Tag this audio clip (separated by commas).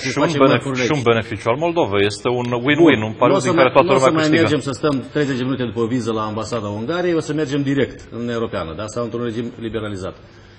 Speech